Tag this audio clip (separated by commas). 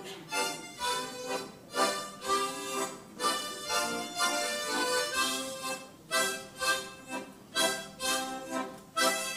playing harmonica